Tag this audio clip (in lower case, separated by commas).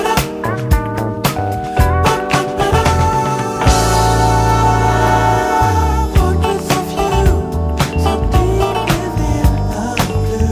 music